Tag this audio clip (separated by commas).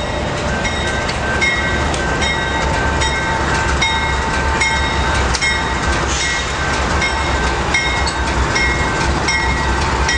Vehicle